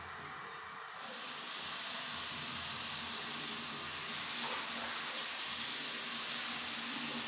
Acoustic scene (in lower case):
restroom